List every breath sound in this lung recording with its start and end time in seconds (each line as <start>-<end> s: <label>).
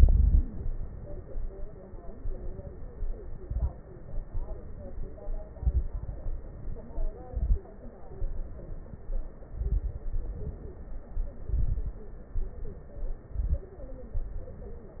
0.00-0.45 s: exhalation
0.00-0.45 s: crackles
3.38-3.74 s: inhalation
3.38-3.74 s: crackles
5.55-6.21 s: inhalation
5.55-6.21 s: crackles
6.37-7.10 s: exhalation
7.28-7.64 s: inhalation
7.28-7.64 s: crackles
8.15-9.04 s: exhalation
9.54-10.09 s: inhalation
9.54-10.09 s: crackles
10.09-10.83 s: exhalation
10.09-10.83 s: crackles
11.48-12.04 s: inhalation
11.48-12.04 s: crackles
12.33-13.24 s: exhalation
12.33-13.24 s: crackles
13.32-13.76 s: inhalation
13.32-13.76 s: crackles
14.20-15.00 s: exhalation